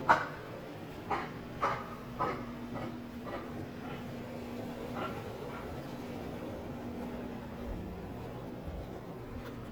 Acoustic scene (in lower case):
residential area